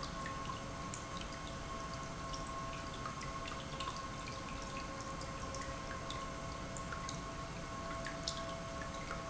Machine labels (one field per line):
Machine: pump